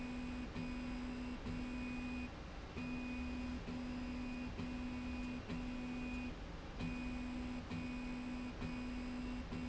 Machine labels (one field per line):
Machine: slide rail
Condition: normal